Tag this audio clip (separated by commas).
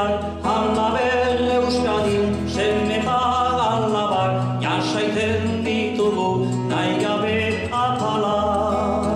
Male singing, Music